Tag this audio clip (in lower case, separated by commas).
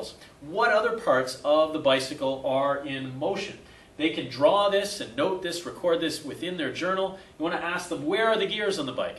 speech